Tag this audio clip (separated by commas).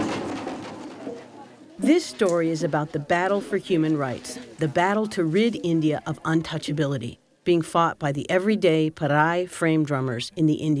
Music, Drum, Speech, Musical instrument